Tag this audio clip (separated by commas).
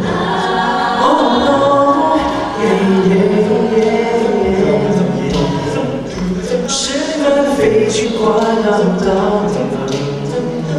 Male singing, Choir, Female singing